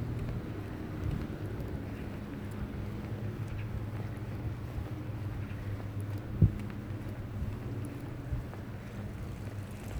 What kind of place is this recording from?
residential area